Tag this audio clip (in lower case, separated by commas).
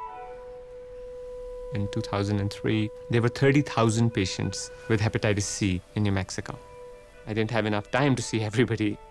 speech, music